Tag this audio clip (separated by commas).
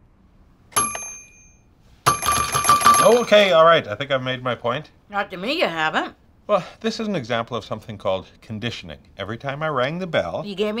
Speech